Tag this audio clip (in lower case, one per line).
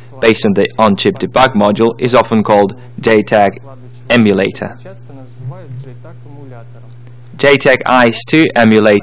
speech